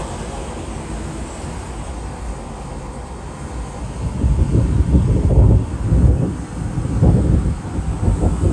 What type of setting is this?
street